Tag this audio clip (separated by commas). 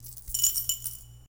Coin (dropping), Domestic sounds